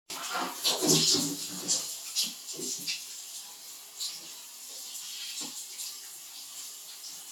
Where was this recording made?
in a restroom